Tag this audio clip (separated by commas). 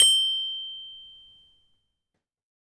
Percussion, Mallet percussion, Marimba, Musical instrument, Music